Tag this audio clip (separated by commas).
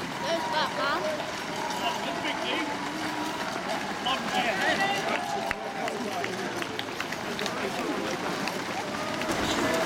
Speech, Run, outside, urban or man-made